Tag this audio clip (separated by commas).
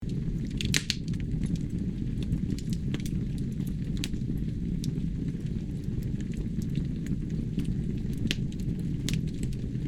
Fire